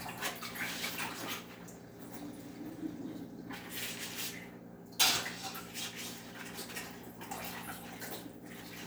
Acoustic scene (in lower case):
kitchen